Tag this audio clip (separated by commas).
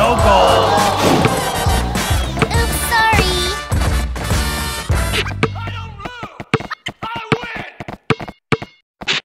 Speech, Music